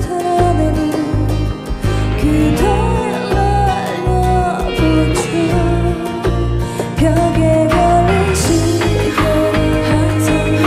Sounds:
Music

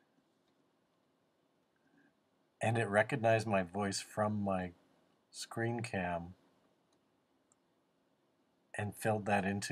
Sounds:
Speech, man speaking

